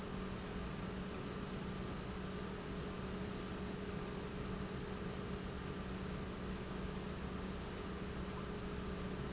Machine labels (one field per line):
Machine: pump